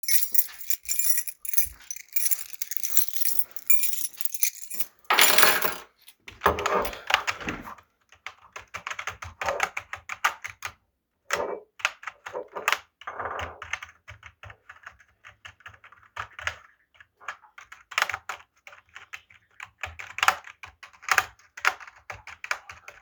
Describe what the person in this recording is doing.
playing with key set while working on keyboard typing